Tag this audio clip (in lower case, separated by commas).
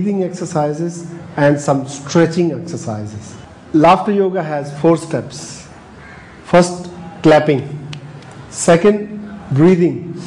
speech